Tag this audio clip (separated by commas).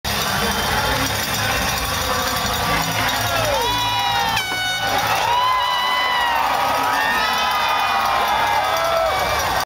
Speech